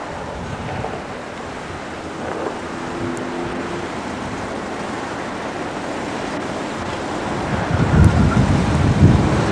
Traffic passes, wind blows